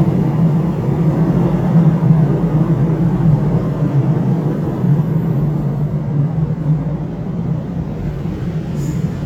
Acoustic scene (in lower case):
subway train